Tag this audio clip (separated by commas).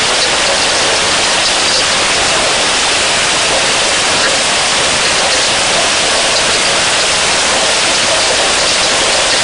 Rain on surface